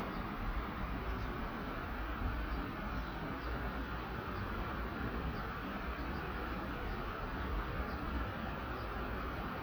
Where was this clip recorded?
in a park